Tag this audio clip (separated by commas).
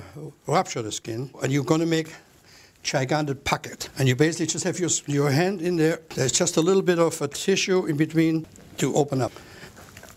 Speech